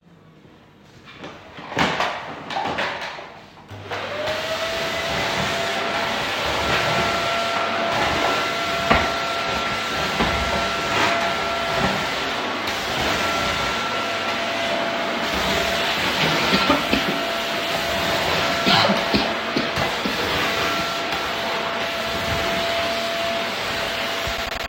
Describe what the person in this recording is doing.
I moved the vacuum cleaner, and that sound is audible before turning it on. I then turned it on and started vacuum cleaning. While vacuum cleaning, I also started coughing, and the cough is audible as a non-target sound.